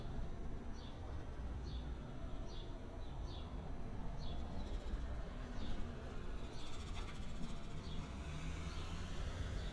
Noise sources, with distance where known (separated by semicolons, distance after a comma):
medium-sounding engine, far